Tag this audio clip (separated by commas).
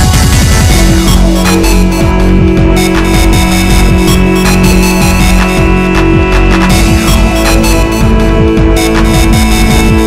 Music